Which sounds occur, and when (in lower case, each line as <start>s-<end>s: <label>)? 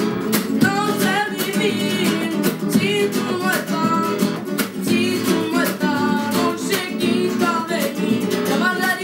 0.0s-9.0s: music
0.5s-2.4s: child singing
2.7s-4.2s: child singing
4.9s-9.0s: child singing